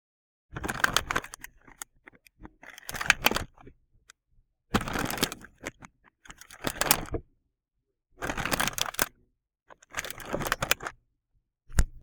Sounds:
crinkling

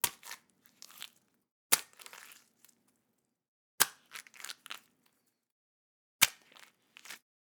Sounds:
Liquid, splatter

